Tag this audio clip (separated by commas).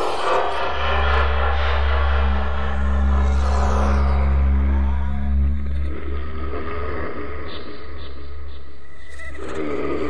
inside a small room, Music